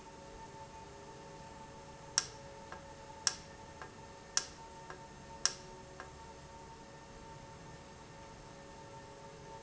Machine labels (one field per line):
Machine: valve